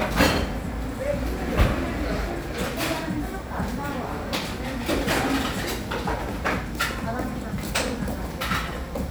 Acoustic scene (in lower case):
cafe